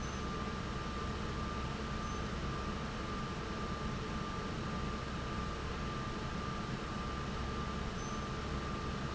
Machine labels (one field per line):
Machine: fan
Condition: normal